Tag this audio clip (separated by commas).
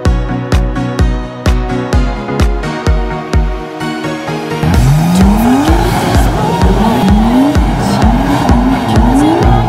Music, Car, Vehicle